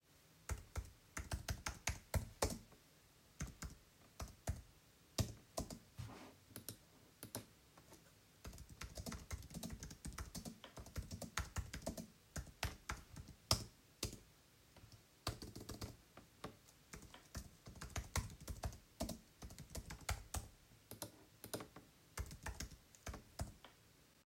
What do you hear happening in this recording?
I was sitting infant my computer. I was typing some sentences with my keyboard and clicking on some tabs at the screen with the computer mouse.